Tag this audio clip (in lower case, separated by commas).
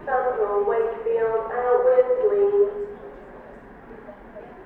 speech, human voice